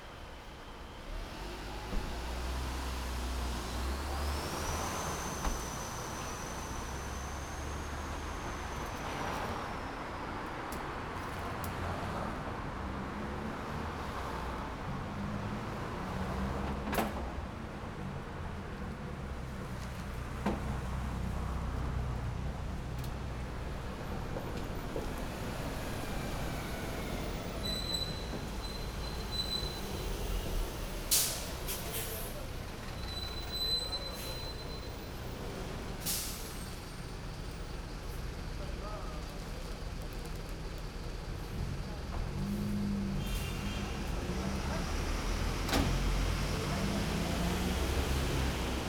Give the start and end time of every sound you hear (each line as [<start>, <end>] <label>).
[0.00, 0.95] bus engine idling
[0.00, 9.45] bus
[0.94, 9.45] bus engine accelerating
[4.59, 17.23] car wheels rolling
[4.59, 21.97] car
[14.77, 17.23] car engine accelerating
[17.26, 21.97] car engine idling
[23.94, 27.54] bus engine accelerating
[23.94, 48.89] bus
[27.52, 29.91] bus brakes
[27.59, 43.58] bus engine idling
[30.84, 32.37] bus compressor
[31.63, 35.42] people talking
[32.88, 35.06] bus brakes
[35.97, 36.49] bus compressor
[36.28, 37.70] bus brakes
[37.94, 38.29] bus compressor
[38.42, 39.87] people talking
[41.22, 41.52] bus compressor
[41.29, 43.64] car
[41.29, 43.64] car engine accelerating
[42.07, 42.69] bus compressor
[42.95, 43.53] bus compressor
[42.98, 43.78] unclassified sound
[43.59, 48.89] bus engine accelerating
[44.61, 45.33] people talking
[46.71, 47.59] people talking